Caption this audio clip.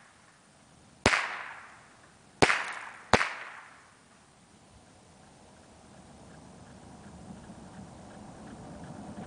Gun being fired repeatedly